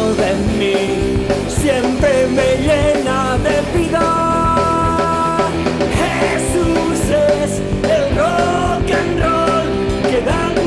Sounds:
music

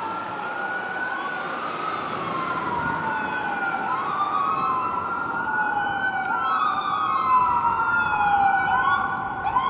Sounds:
emergency vehicle, fire engine, vehicle, car

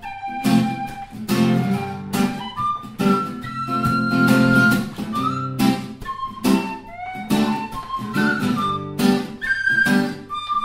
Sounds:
music

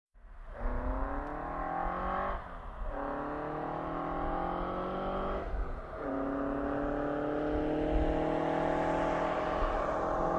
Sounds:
car passing by

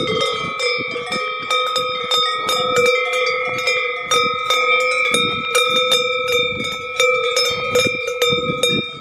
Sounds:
bovinae cowbell

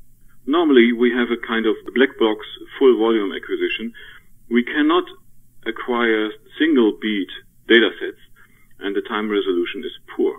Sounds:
speech

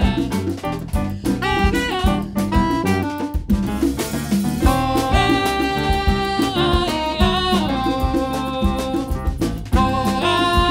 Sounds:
music

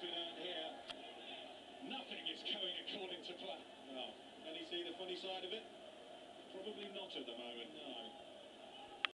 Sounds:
speech

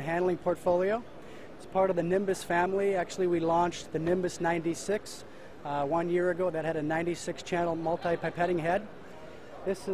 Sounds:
speech

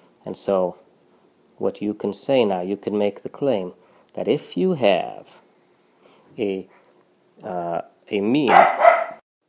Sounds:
bow-wow

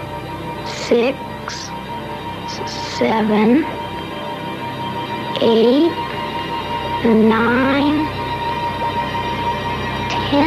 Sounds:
speech, music

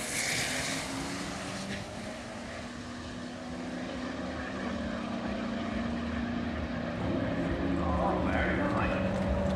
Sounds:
vehicle, car, outside, urban or man-made, auto racing, speech

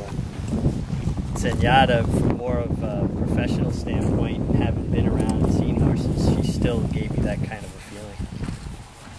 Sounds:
animal, horse, speech

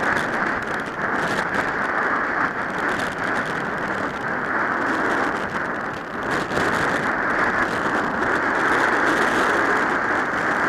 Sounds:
bus, vehicle

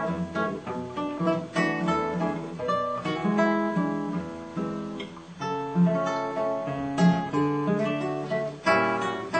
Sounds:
plucked string instrument, music, acoustic guitar, musical instrument, guitar, strum

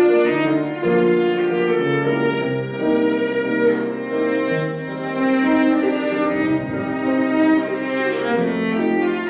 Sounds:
bowed string instrument, musical instrument, piano, cello, music

